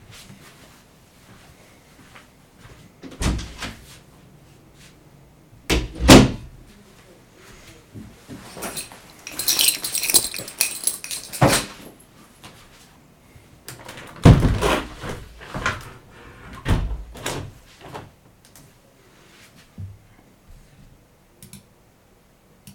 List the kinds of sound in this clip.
door, keys, window